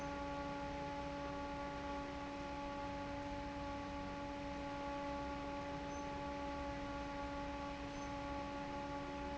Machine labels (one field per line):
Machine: fan